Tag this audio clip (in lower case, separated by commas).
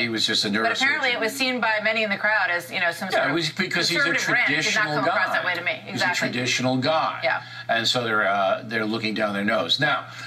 speech, woman speaking, male speech, conversation